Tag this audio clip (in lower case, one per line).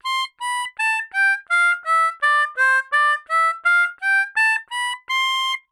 musical instrument
harmonica
music